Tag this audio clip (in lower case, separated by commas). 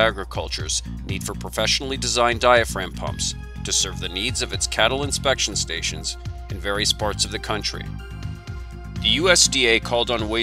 music, speech